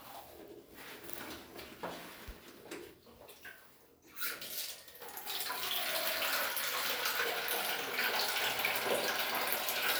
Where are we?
in a restroom